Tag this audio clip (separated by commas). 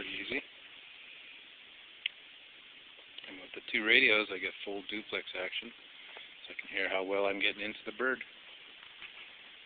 Speech